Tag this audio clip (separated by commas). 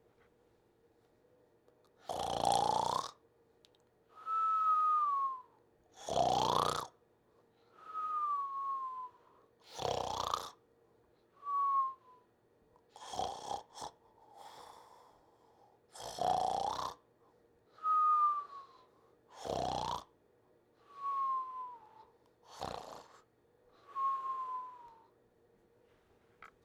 Respiratory sounds, Breathing